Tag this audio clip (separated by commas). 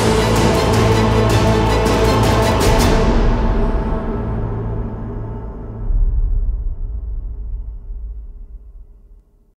Music